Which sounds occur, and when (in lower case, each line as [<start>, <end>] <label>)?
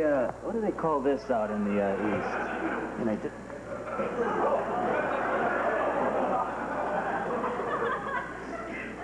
[0.00, 0.28] male speech
[0.00, 9.03] background noise
[0.00, 9.03] conversation
[0.46, 3.28] male speech
[1.65, 3.08] laughter
[3.80, 9.03] laughter